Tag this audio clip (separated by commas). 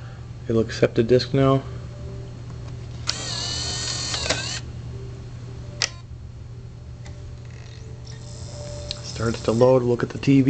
Speech